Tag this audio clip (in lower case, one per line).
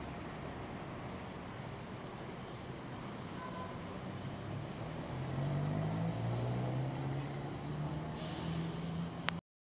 driving buses
vehicle
bus